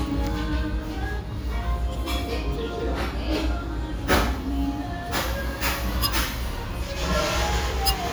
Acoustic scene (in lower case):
restaurant